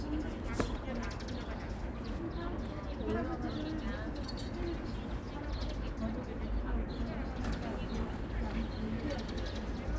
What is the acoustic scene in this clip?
park